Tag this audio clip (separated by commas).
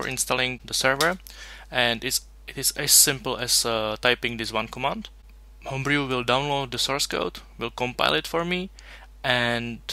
Speech